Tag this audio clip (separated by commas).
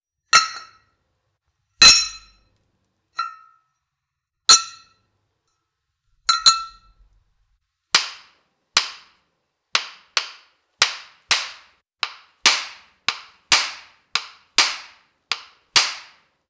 Glass, clink